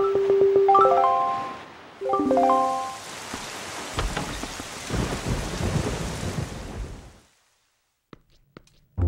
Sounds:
rustling leaves
music

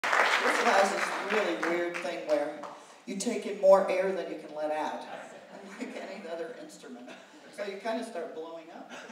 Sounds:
speech

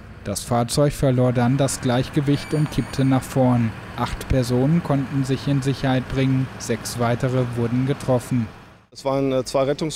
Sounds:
speech

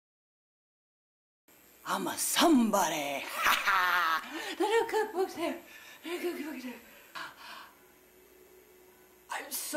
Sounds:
speech

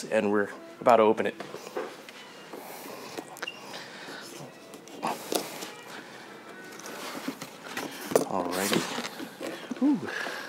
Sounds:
speech

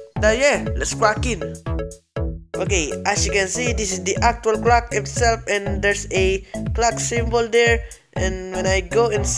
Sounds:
music
speech

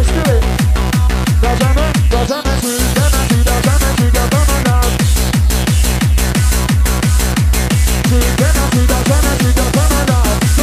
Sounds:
music

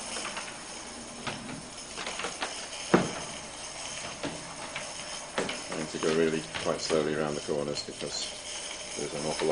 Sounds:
speech

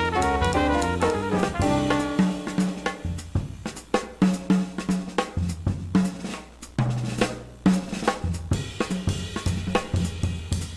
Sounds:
snare drum
hi-hat
cymbal
drum kit
percussion
bass drum
drum
rimshot

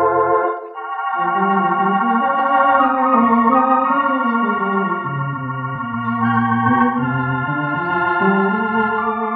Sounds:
theremin
music

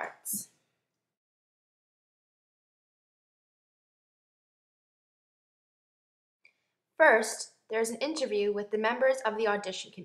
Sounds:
speech

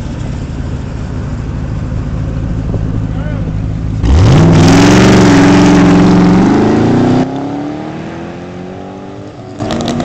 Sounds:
speech
car passing by
vehicle
motor vehicle (road)
car

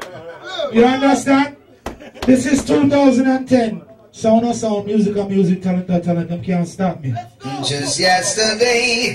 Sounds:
speech

